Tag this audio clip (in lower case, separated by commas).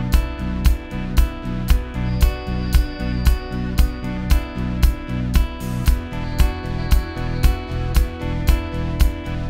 music